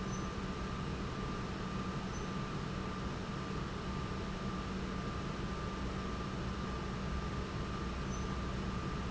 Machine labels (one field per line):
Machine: pump